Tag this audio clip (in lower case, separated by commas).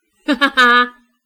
laughter, human voice